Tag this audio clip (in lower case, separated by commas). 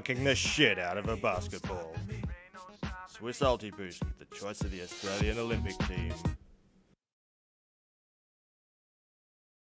music, speech